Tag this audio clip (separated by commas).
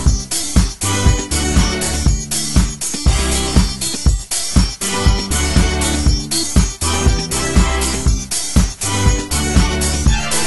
Music